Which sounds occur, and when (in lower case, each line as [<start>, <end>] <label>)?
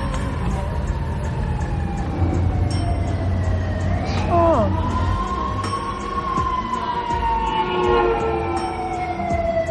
[0.00, 9.70] music
[0.00, 9.70] siren
[0.10, 0.19] generic impact sounds
[2.67, 3.29] bell
[4.03, 4.72] child speech
[5.65, 6.31] bell
[6.51, 7.96] singing
[7.46, 9.61] vehicle horn
[8.53, 9.08] bell